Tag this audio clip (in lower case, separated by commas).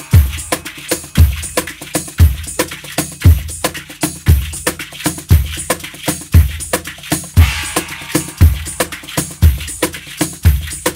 music, percussion, wood block